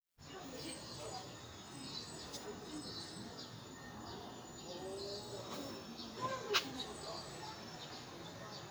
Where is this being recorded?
in a residential area